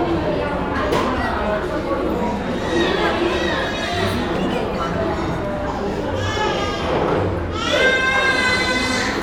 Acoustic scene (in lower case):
cafe